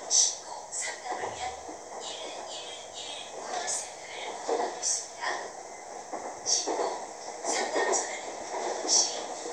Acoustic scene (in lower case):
subway train